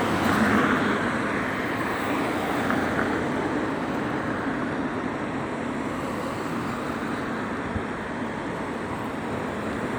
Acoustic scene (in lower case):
street